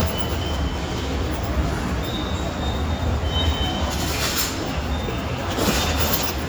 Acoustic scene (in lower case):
subway station